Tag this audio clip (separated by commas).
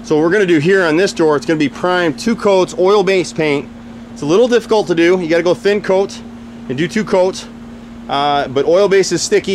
Speech